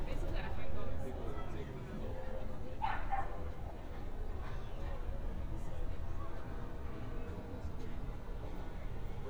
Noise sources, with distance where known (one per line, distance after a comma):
person or small group talking
dog barking or whining